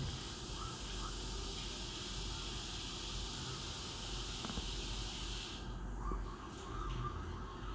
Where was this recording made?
in a restroom